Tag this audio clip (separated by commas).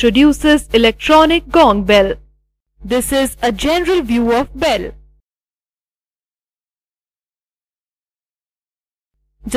Speech